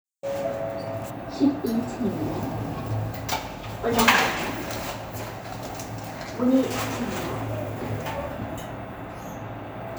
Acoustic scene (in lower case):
elevator